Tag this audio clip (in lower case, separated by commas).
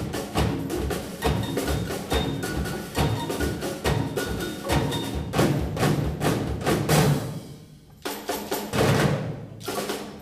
music